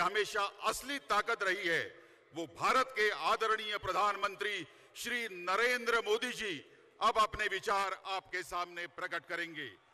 Man giving a speech loudly